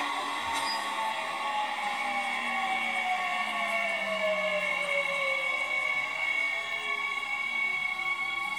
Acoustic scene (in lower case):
subway train